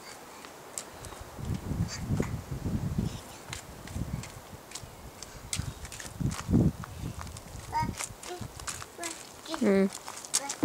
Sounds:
outside, urban or man-made, speech

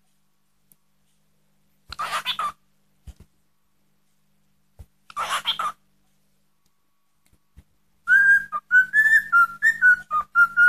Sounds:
whistling

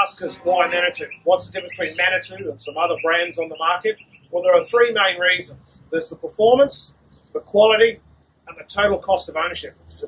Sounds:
speech

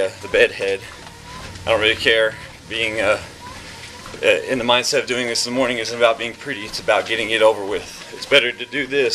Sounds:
speech

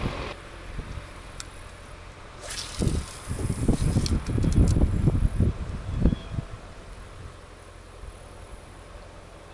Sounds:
wind, outside, rural or natural

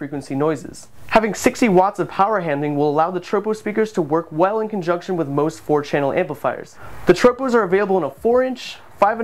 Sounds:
speech

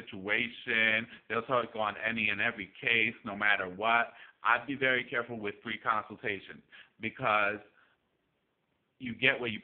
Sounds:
speech, inside a small room

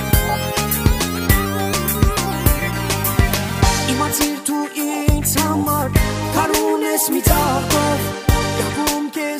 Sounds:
music

